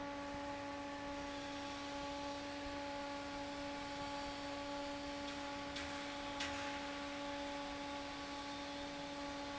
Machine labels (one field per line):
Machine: fan